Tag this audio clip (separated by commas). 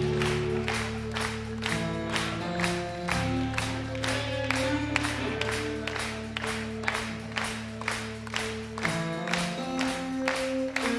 Music